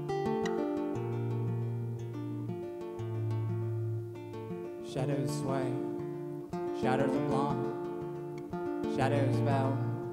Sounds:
speech
music

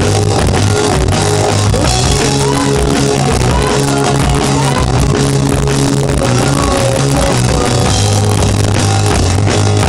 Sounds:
rock and roll
music

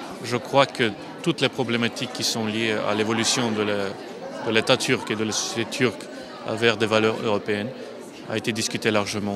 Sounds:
speech

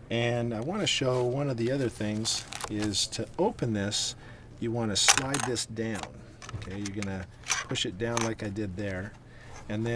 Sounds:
speech

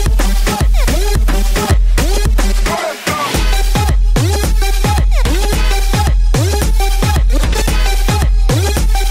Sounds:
disco
music

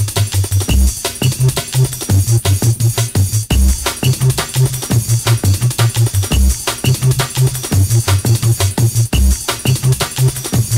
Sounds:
music

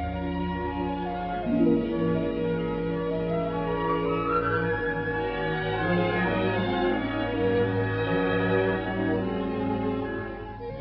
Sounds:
music

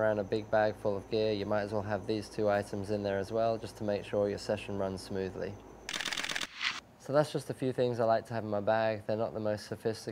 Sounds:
speech

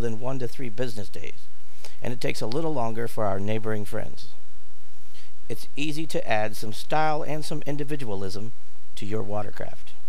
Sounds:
speech

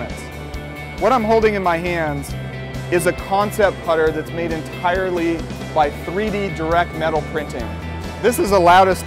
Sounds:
music
speech

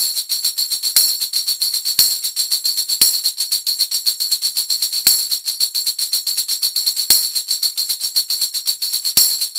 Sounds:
music

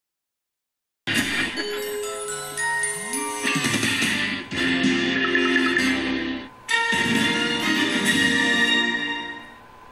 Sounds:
music
television

